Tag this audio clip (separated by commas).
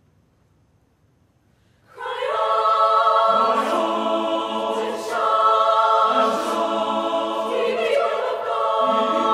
Whoop, Music